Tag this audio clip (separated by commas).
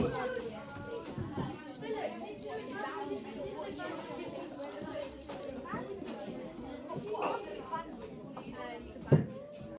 Speech